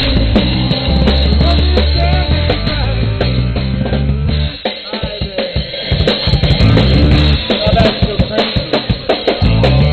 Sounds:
Music

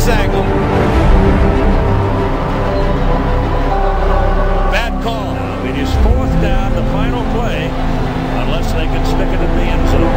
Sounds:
Music, Speech

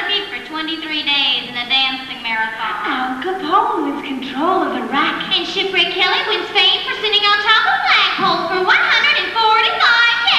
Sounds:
Speech

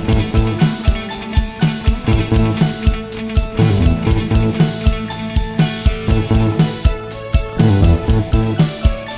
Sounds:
Music

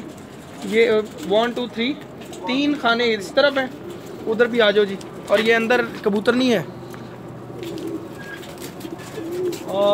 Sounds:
dove, Speech

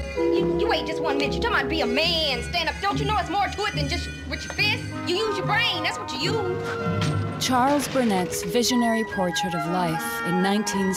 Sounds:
Speech, Music

